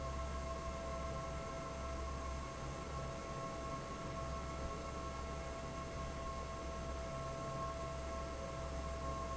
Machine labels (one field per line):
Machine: fan